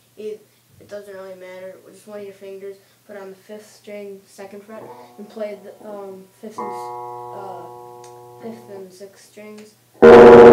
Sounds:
speech
music

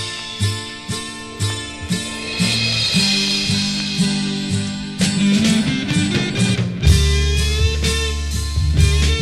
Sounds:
rimshot
psychedelic rock
music

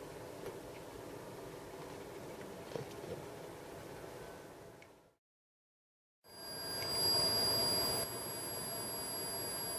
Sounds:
buzzer

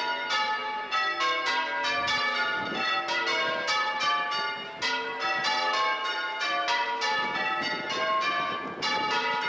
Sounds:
church bell ringing

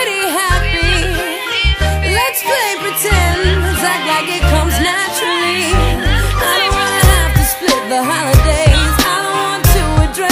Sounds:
music

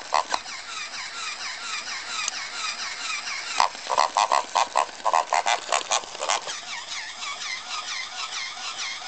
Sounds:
pig oinking

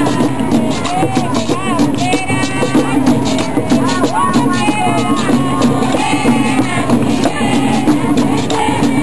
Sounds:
music

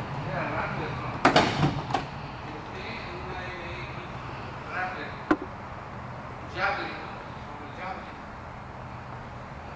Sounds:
speech

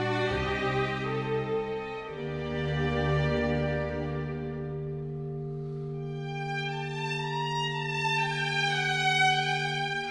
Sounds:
music
bowed string instrument

